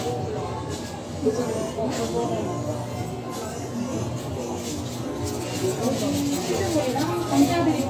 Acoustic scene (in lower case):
restaurant